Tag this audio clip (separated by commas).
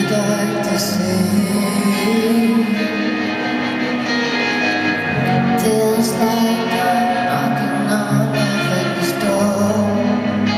Music